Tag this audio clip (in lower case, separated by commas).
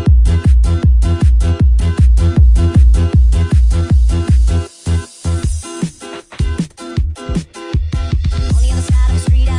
electronic music, techno, music